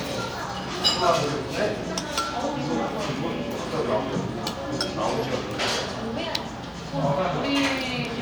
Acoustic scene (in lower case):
cafe